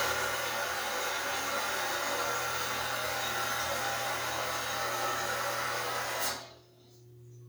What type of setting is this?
restroom